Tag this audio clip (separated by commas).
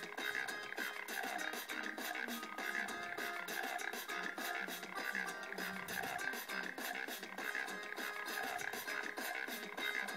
Hip hop music, Music